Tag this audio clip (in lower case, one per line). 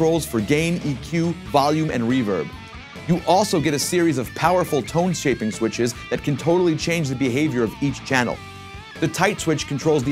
speech
music
musical instrument
electric guitar